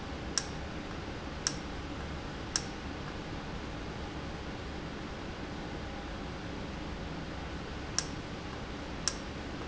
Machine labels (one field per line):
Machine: valve